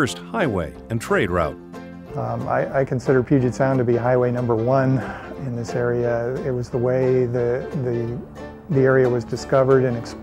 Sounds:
Music, Speech

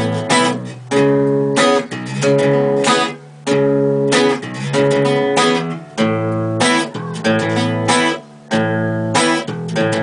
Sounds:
Music

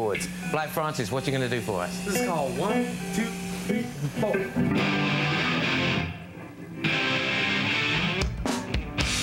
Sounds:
Music, Speech

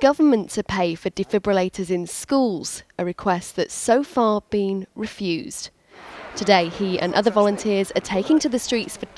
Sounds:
Speech

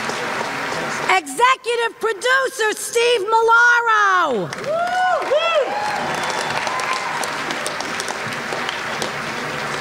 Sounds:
Speech

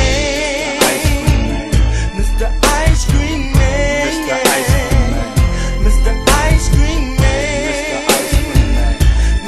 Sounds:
Music

